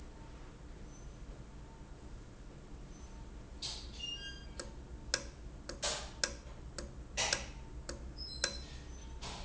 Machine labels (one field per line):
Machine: valve